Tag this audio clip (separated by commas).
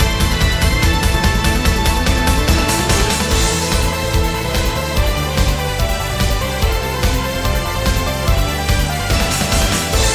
Pop music, Exciting music, Video game music, Music, Theme music